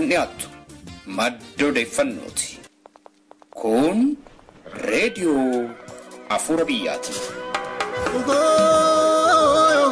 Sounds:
music, speech

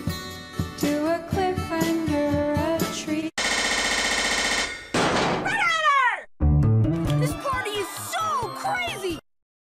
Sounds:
speech, music

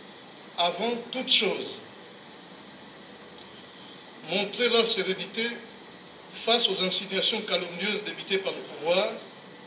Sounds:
speech

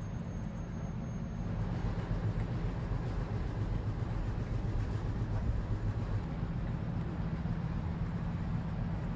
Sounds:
railroad car

